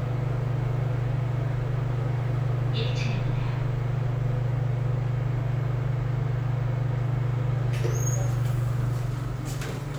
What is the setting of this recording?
elevator